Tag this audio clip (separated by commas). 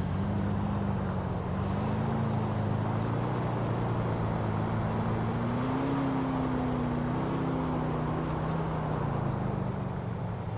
Vehicle, Car